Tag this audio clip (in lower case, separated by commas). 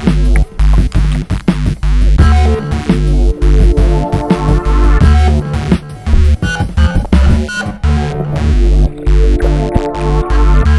sampler, music